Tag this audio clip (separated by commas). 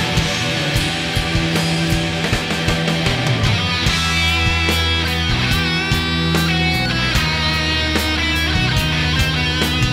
Music